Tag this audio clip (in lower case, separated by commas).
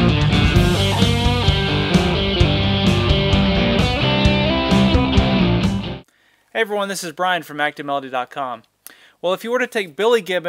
plucked string instrument, guitar, strum, electric guitar, speech, musical instrument, music